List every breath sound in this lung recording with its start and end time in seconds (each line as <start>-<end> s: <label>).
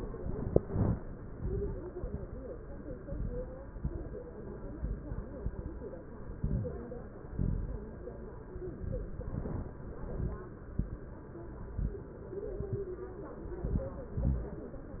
0.00-0.53 s: inhalation
0.00-0.53 s: crackles
0.61-1.14 s: exhalation
0.61-1.14 s: crackles
1.27-1.84 s: inhalation
1.27-1.84 s: crackles
1.94-2.50 s: exhalation
1.94-2.50 s: crackles
2.96-3.53 s: inhalation
2.96-3.53 s: crackles
3.76-4.33 s: exhalation
3.76-4.33 s: crackles
4.69-5.32 s: inhalation
4.69-5.32 s: crackles
5.36-5.98 s: exhalation
5.36-5.98 s: crackles
6.35-6.97 s: inhalation
6.35-6.97 s: crackles
7.24-7.96 s: exhalation
7.24-7.96 s: crackles
8.61-9.20 s: inhalation
8.61-9.20 s: crackles
9.23-9.92 s: exhalation
9.23-9.92 s: crackles
9.96-10.64 s: inhalation
9.96-10.64 s: crackles
10.64-11.32 s: exhalation
10.64-11.32 s: crackles
11.55-12.23 s: inhalation
11.55-12.23 s: crackles
12.39-13.07 s: exhalation
12.39-13.07 s: crackles
13.45-14.14 s: inhalation
13.45-14.14 s: crackles
14.14-14.82 s: exhalation
14.14-14.82 s: crackles